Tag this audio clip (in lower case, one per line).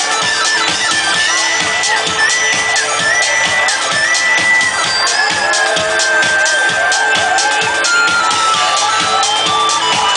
music